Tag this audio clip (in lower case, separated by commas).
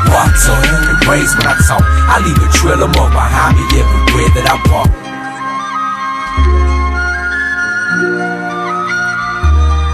rapping, hip hop music, music